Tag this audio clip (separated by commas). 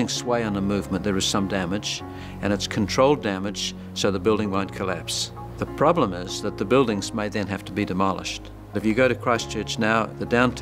Speech, Music